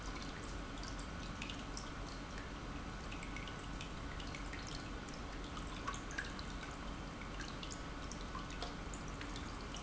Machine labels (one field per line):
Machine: pump